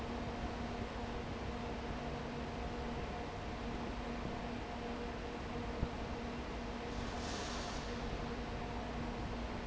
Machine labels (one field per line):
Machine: fan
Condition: abnormal